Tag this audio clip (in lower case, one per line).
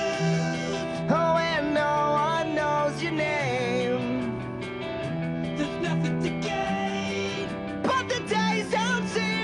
music